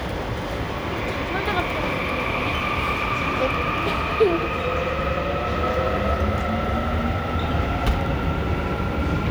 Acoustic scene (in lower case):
subway station